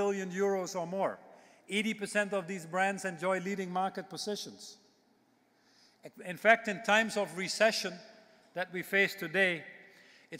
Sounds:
speech, male speech

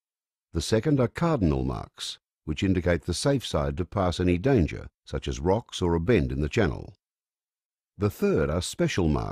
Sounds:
speech

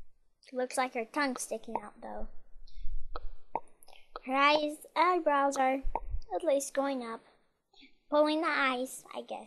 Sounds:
speech, inside a small room

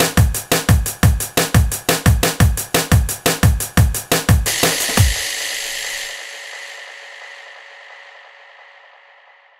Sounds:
drum and bass, music

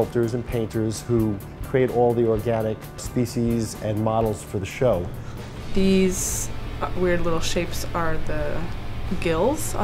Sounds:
music, speech

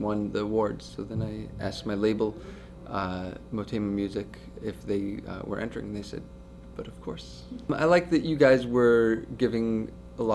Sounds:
speech

